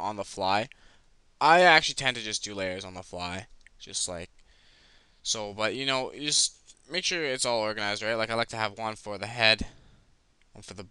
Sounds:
Speech

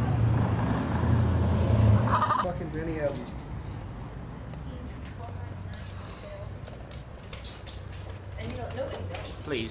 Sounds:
Speech, Car

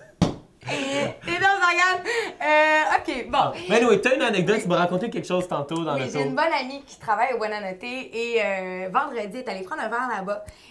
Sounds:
Speech

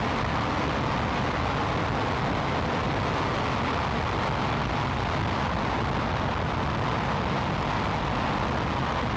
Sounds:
outside, rural or natural

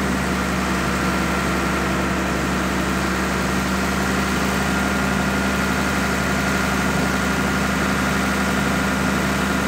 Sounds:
Vehicle

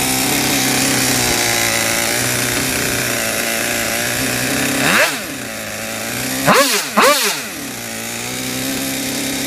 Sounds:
vroom

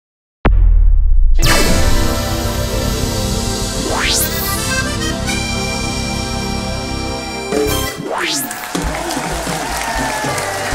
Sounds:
Accordion, Musical instrument, Traditional music, Speech, Orchestra, Music

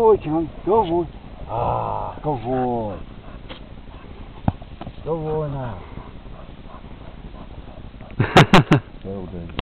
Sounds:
Speech

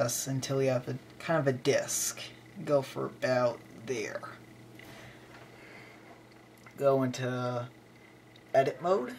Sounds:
Speech

